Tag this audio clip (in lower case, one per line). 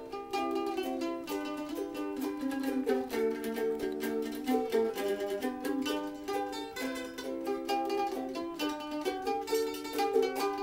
plucked string instrument
ukulele
music
musical instrument